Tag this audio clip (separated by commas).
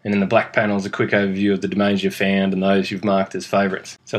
Speech